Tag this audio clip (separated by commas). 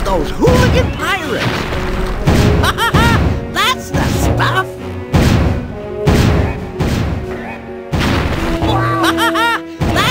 Speech, Music